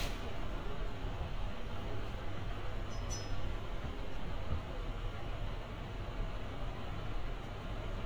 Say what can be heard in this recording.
large-sounding engine